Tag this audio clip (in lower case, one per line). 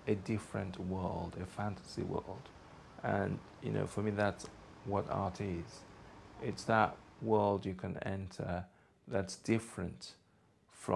speech